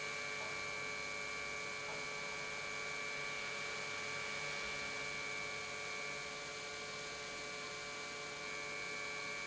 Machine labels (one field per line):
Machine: pump